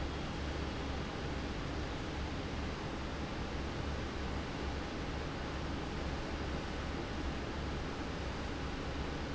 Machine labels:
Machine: fan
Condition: abnormal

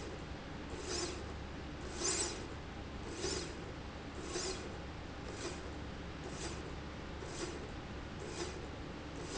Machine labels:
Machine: slide rail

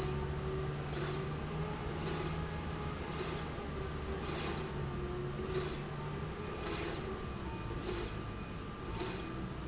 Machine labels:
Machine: slide rail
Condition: normal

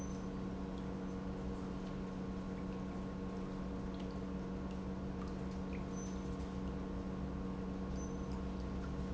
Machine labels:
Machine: pump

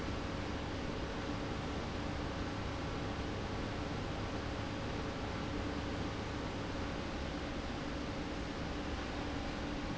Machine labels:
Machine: pump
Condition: abnormal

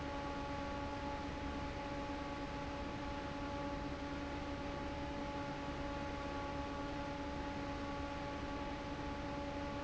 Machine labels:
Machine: fan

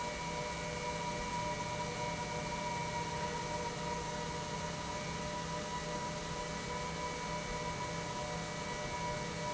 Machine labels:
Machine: pump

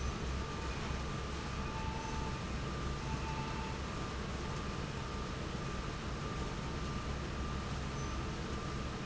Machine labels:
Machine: fan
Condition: normal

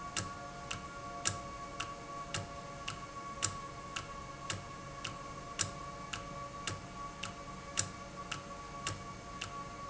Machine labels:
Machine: valve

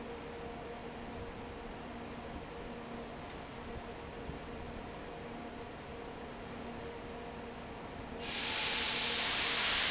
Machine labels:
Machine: fan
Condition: normal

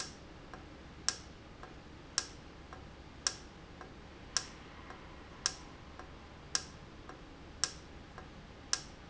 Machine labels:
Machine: valve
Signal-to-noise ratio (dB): 6 dB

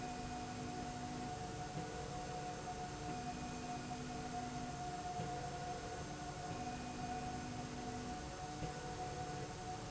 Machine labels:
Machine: slide rail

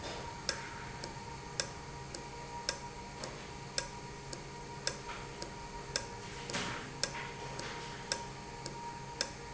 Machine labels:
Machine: valve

